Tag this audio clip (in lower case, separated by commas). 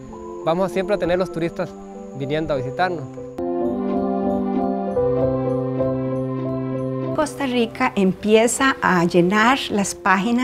music, speech